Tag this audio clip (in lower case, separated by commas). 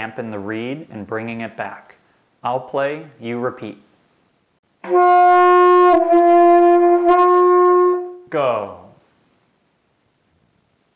wind instrument